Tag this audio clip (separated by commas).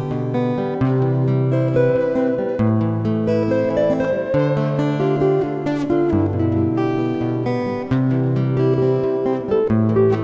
Guitar, Plucked string instrument, Acoustic guitar, Music, Musical instrument